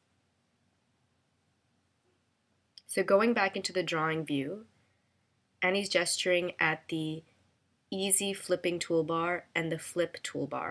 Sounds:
Speech

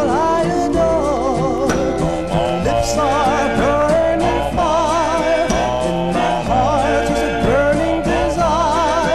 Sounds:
Music

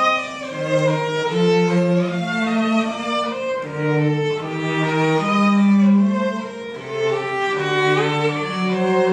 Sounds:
Cello, playing cello, Music, Violin, Musical instrument

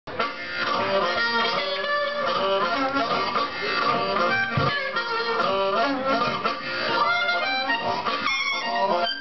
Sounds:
Harmonica, woodwind instrument

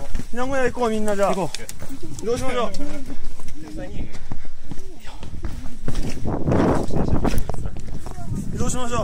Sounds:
volcano explosion

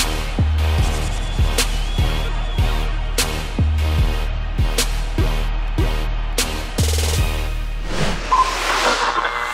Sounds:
Music

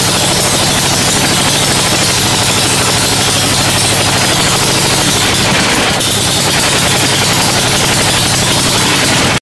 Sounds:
Engine

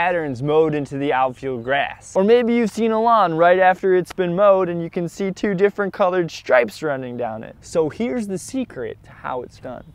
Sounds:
Speech

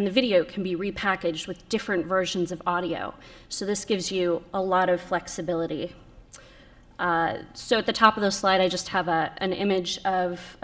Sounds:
Speech

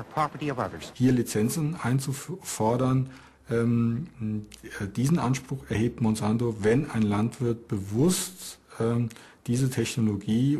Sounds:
Speech

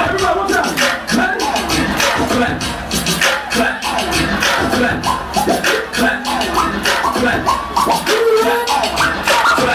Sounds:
Beatboxing

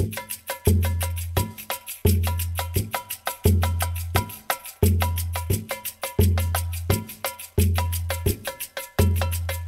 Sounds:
Drum, Musical instrument, Drum kit, Music

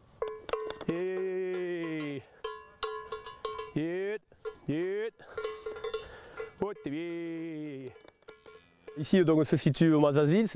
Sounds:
bovinae cowbell

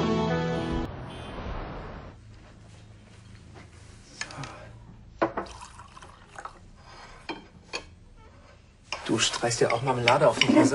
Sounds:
Speech, inside a small room, Music

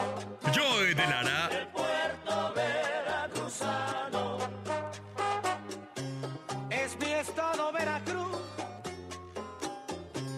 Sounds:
Music, Speech

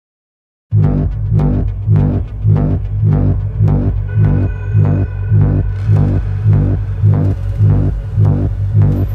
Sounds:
Soundtrack music, Music

